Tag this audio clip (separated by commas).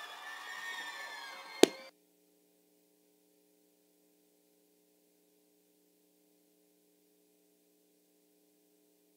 Crowd